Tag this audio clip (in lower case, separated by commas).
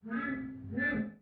glass